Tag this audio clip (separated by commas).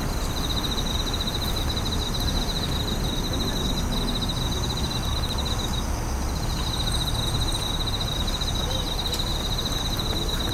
cricket chirping